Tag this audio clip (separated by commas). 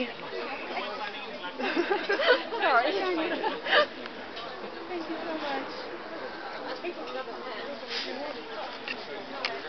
Speech